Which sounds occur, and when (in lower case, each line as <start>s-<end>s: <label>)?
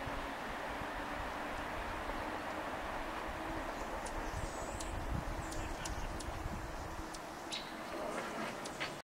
0.0s-9.0s: wind
0.9s-1.1s: wind noise (microphone)
1.5s-1.6s: tick
2.0s-2.1s: generic impact sounds
2.4s-2.5s: tick
3.7s-3.8s: tick
4.0s-4.1s: tick
4.1s-4.4s: wind noise (microphone)
4.2s-4.8s: tweet
4.8s-4.8s: tick
4.9s-6.9s: wind noise (microphone)
5.4s-6.1s: tweet
5.5s-5.6s: tick
5.8s-5.9s: tick
6.2s-6.2s: tick
6.7s-7.1s: tweet
7.1s-7.2s: tick
7.5s-7.7s: tweet
7.8s-8.7s: scrape
8.6s-8.7s: tick
8.7s-8.9s: generic impact sounds